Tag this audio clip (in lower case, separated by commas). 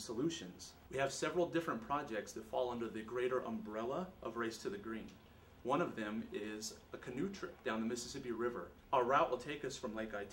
speech